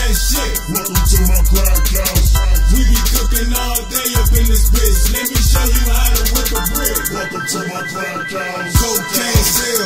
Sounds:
Music, House music

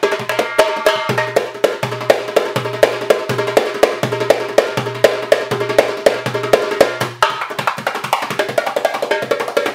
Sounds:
Music, inside a large room or hall

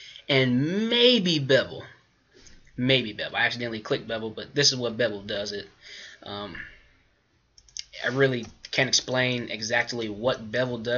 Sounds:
Clicking

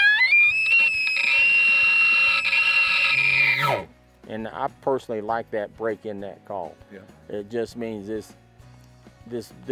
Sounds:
elk bugling

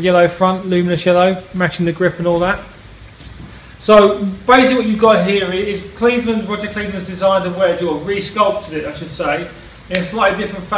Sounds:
Speech

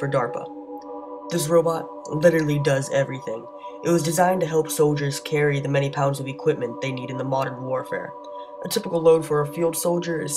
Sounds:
Speech, Music

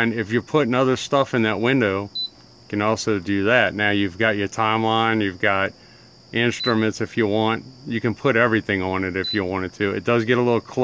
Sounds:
Speech

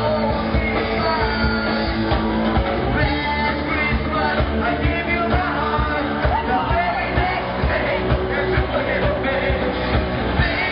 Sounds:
Male singing, Music

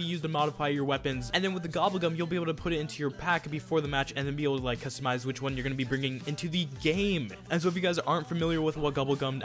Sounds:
Music, Speech

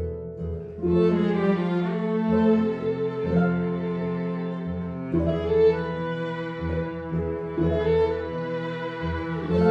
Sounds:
Music, Bowed string instrument

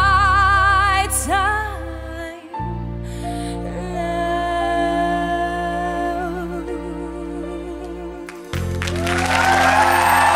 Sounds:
Singing, Music

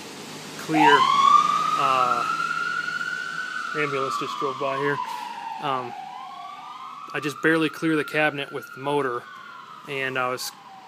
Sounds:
Police car (siren), Siren

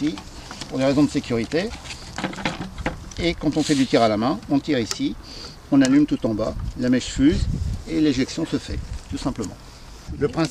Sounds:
Speech

